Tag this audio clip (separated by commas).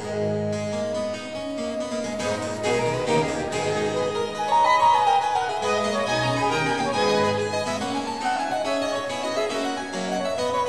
Harpsichord, Music